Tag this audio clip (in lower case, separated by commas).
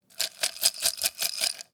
rattle